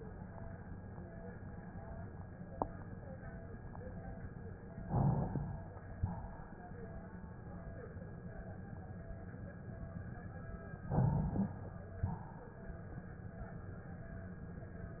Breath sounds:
Inhalation: 4.90-5.75 s, 10.89-11.75 s
Exhalation: 5.98-6.83 s, 12.05-12.90 s

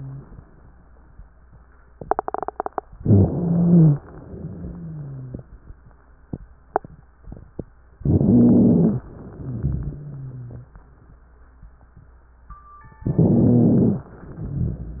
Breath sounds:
Inhalation: 2.97-4.00 s, 7.99-9.02 s, 13.05-14.07 s
Exhalation: 4.06-5.48 s, 9.10-10.72 s, 14.11-15.00 s
Wheeze: 3.21-4.00 s, 4.32-5.48 s, 7.99-9.02 s, 9.38-10.72 s, 13.05-14.07 s, 14.11-15.00 s

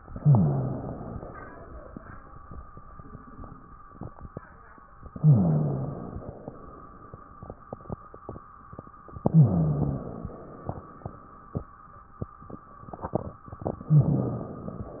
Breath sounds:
Inhalation: 0.08-1.18 s, 5.16-6.39 s, 9.28-10.44 s, 13.91-15.00 s
Exhalation: 1.18-2.31 s, 6.39-7.55 s, 10.44-11.69 s
Rhonchi: 0.10-0.92 s, 5.14-6.03 s, 9.26-10.29 s, 13.91-14.53 s

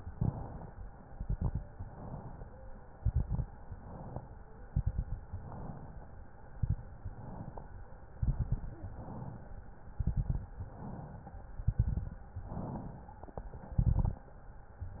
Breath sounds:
Inhalation: 0.00-1.03 s, 1.75-2.78 s, 3.53-4.56 s, 5.28-6.31 s, 7.07-8.10 s, 8.81-9.85 s, 10.56-11.48 s, 12.33-13.24 s, 14.75-15.00 s
Exhalation: 1.04-1.70 s, 2.82-3.49 s, 4.59-5.25 s, 6.39-7.06 s, 8.14-8.81 s, 9.89-10.55 s, 11.60-12.26 s, 13.63-14.30 s
Crackles: 1.04-1.70 s, 2.82-3.49 s, 4.59-5.25 s, 6.39-7.06 s, 8.14-8.81 s, 9.89-10.55 s, 11.60-12.26 s, 13.63-14.30 s

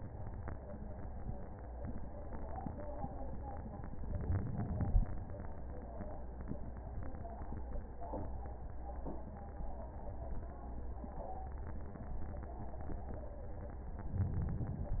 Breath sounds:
Inhalation: 4.09-5.07 s, 14.03-15.00 s

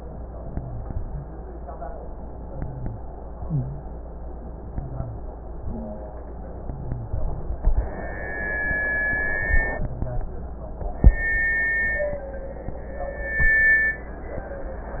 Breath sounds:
Wheeze: 3.40-3.85 s, 5.66-6.22 s
Rhonchi: 0.38-0.95 s, 2.47-3.04 s, 4.69-5.26 s, 6.62-7.19 s, 9.77-10.34 s

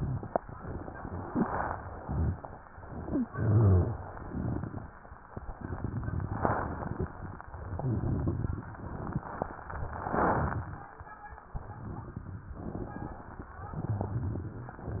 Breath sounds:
Exhalation: 3.28-3.98 s
Wheeze: 3.00-3.28 s
Rhonchi: 3.28-3.98 s, 7.72-8.69 s, 13.79-14.76 s

